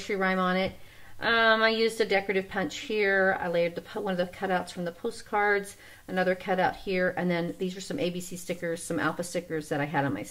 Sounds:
speech

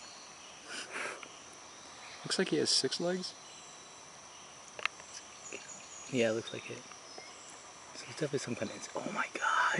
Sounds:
speech

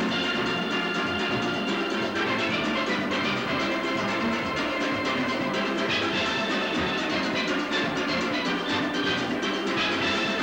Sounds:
music, steelpan

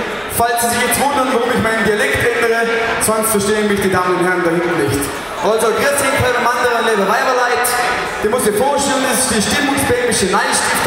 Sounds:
speech

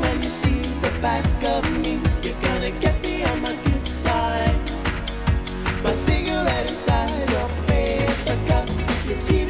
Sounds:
music, singing

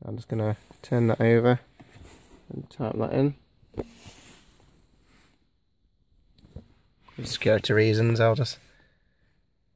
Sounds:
speech

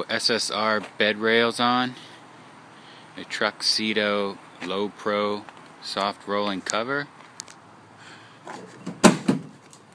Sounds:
speech

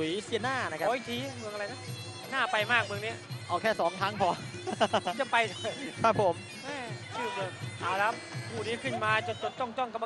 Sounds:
music, speech

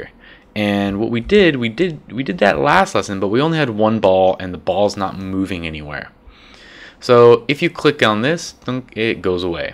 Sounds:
speech

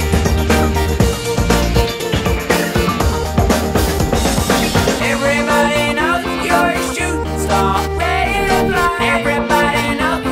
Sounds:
percussion, drum kit, drum, rimshot, bass drum, snare drum

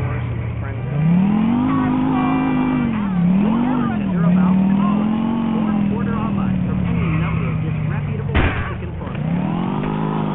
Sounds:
vehicle, motor vehicle (road), speech

